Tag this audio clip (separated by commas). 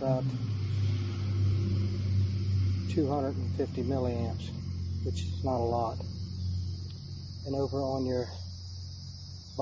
Speech